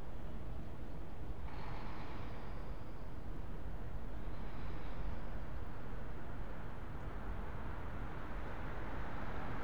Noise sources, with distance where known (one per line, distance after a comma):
large-sounding engine, far